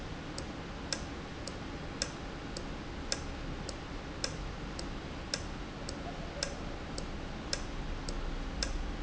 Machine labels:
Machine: valve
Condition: normal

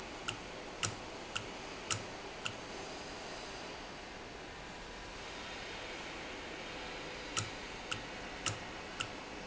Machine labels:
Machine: valve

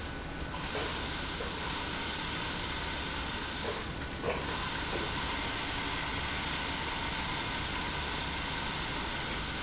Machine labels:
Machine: pump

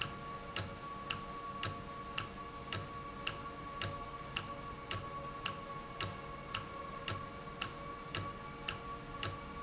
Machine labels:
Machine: valve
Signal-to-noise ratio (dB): 0 dB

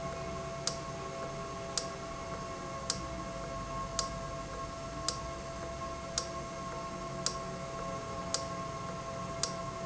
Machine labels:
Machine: valve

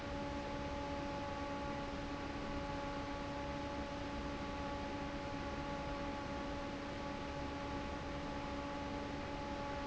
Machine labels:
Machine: fan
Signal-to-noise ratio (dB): 0 dB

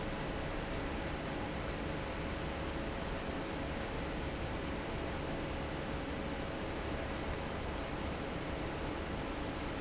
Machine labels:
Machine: fan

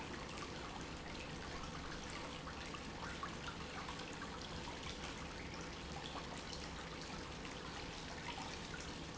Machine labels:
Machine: pump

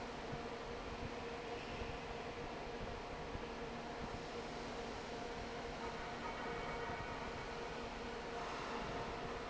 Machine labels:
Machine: fan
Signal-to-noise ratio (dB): 6 dB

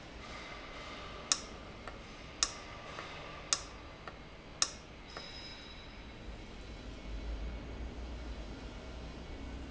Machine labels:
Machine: valve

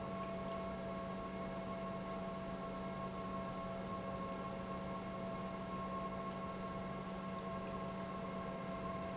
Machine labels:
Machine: pump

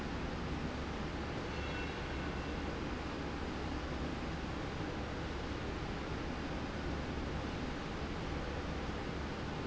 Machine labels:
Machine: slide rail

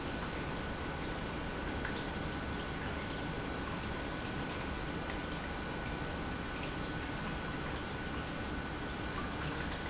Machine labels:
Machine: pump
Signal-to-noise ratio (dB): -6 dB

